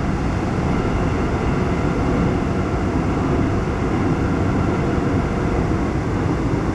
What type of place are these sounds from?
subway train